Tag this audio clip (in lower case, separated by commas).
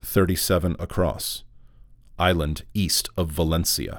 human voice, speech, male speech